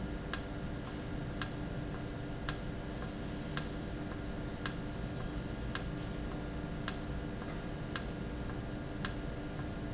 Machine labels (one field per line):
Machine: valve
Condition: normal